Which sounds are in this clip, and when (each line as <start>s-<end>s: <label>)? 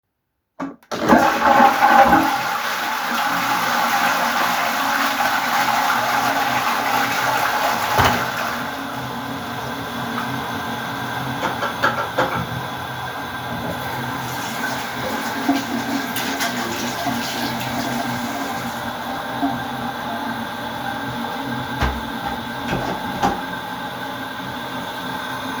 0.5s-25.6s: toilet flushing
13.6s-20.2s: running water